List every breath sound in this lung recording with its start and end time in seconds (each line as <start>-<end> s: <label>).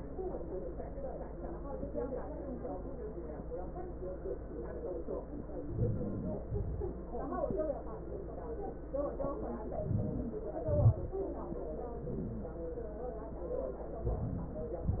5.52-6.19 s: inhalation
6.22-6.83 s: exhalation
9.62-10.68 s: inhalation
10.78-11.63 s: exhalation